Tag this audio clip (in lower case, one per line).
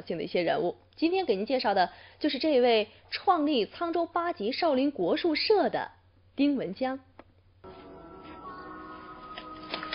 speech